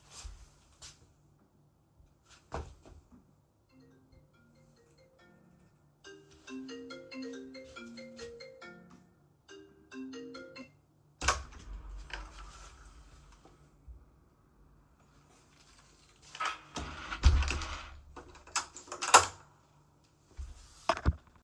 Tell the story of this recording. I was walking across the living room when my phone started ringing. While the ringtone was still audible, I approached the door. I then opened and closed the door before continuing to move.